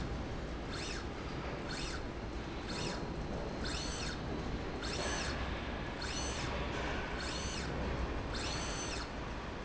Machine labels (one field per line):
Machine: slide rail